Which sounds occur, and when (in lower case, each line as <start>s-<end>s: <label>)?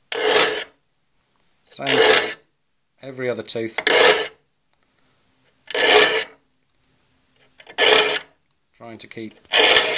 0.0s-9.9s: background noise
0.1s-0.7s: filing (rasp)
1.3s-1.4s: tick
1.6s-1.8s: man speaking
1.6s-2.5s: filing (rasp)
2.9s-3.7s: man speaking
3.8s-4.4s: filing (rasp)
4.7s-4.7s: tick
4.9s-5.0s: tick
5.6s-6.4s: filing (rasp)
6.5s-6.8s: tick
7.3s-8.4s: filing (rasp)
8.4s-8.5s: tick
8.7s-9.4s: man speaking
9.4s-9.9s: filing (rasp)